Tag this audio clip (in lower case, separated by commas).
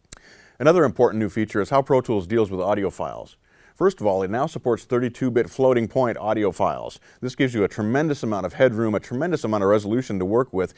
speech